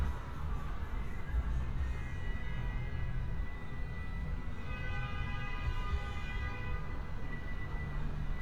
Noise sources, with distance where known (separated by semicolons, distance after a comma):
car horn, far